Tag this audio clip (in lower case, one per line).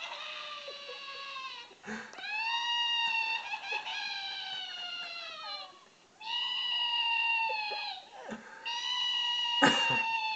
sobbing